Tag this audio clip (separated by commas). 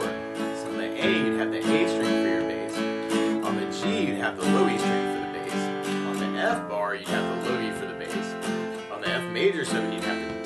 Strum, Speech, Music